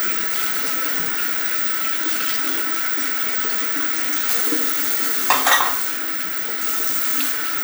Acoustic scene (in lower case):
restroom